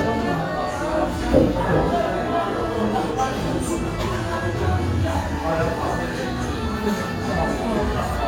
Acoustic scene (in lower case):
crowded indoor space